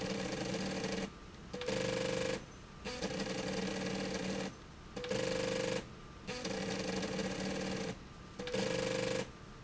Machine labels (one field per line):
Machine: slide rail